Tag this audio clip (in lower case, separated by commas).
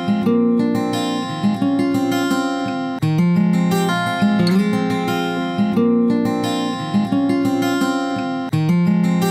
acoustic guitar, music